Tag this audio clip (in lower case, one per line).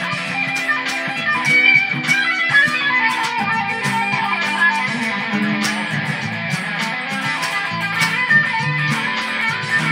strum
plucked string instrument
guitar
musical instrument
music
electric guitar